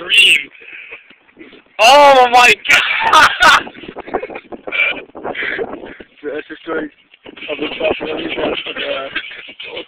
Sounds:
speech

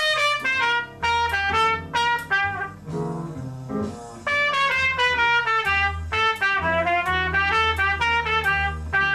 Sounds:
musical instrument, trumpet, playing trumpet, music

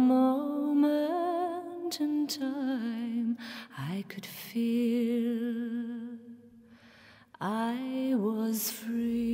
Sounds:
music

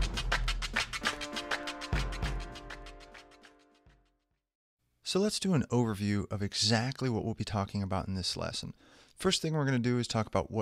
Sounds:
music, speech

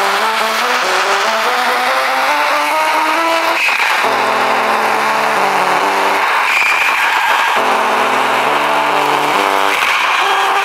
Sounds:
music, rain on surface, raindrop

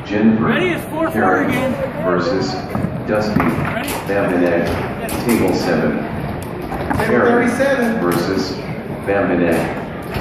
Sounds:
speech, inside a large room or hall

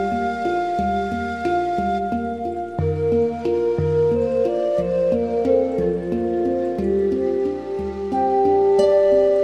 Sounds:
music

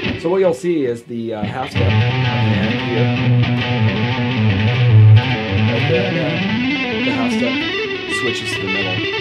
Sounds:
speech, tapping (guitar technique), music

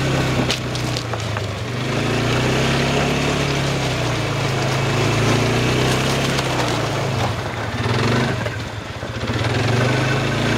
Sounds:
vehicle

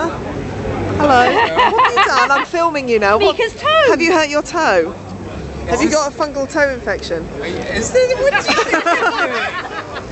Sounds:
speech

